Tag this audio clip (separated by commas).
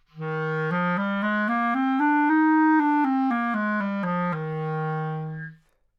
Musical instrument, Music, Wind instrument